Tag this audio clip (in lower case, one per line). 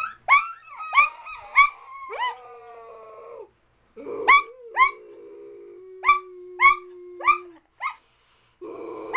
domestic animals
dog
dog barking
animal
bark